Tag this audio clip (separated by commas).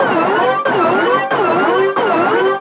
Alarm